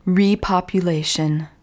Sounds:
woman speaking
human voice
speech

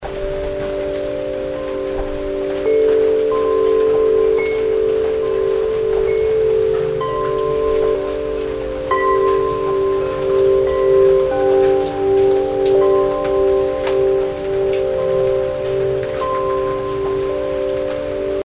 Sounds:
rain
bell
chime
water

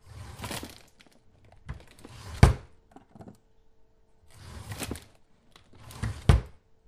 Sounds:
drawer open or close
home sounds

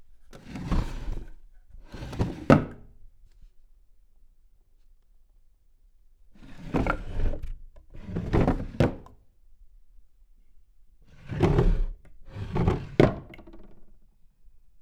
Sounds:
domestic sounds
drawer open or close

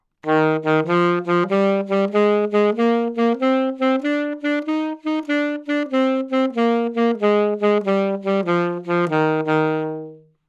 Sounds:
music
woodwind instrument
musical instrument

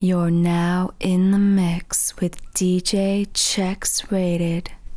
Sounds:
female speech
speech
human voice

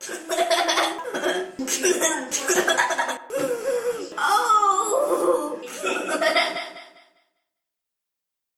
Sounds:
laughter
human voice

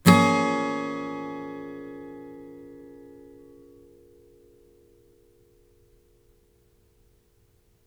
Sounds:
musical instrument
acoustic guitar
plucked string instrument
strum
music
guitar

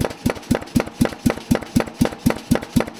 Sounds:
tools

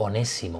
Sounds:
human voice

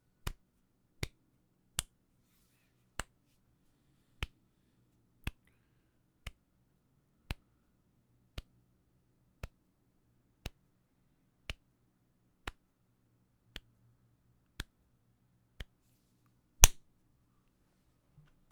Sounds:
hands

